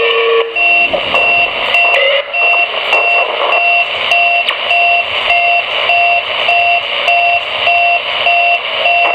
An alarm that is going off and beeping